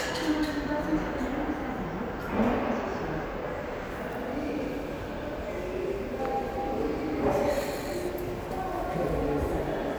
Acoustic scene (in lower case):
subway station